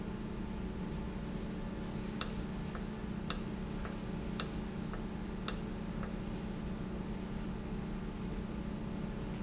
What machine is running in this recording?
valve